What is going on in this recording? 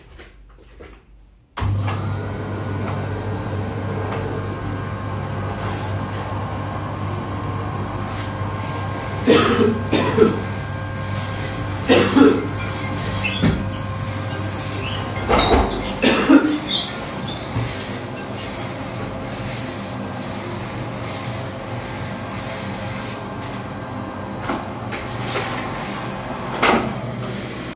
Walked over to the vacuum cleaner, turned it on, coughed a couple of times, and my phone was ringing in the meanwhile